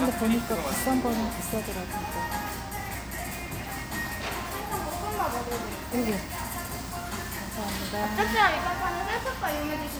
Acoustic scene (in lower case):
restaurant